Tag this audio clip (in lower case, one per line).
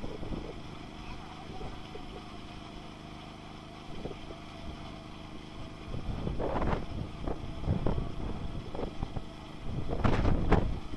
speech